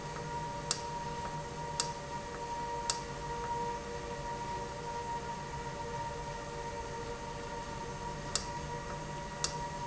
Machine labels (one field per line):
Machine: valve